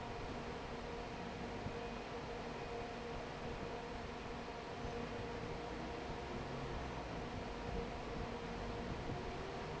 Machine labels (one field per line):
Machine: fan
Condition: normal